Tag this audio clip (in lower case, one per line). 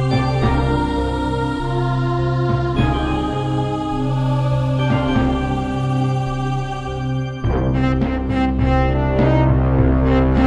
music
theme music